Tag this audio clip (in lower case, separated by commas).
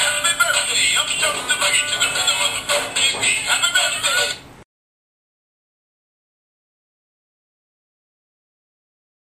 music